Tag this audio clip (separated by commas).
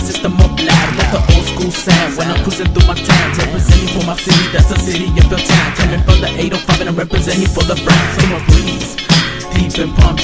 Music